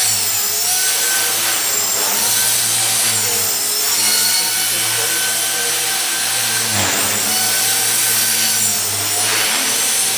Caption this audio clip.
A motor is running and mechanical buzzing occurs, with an adult male speaking in the background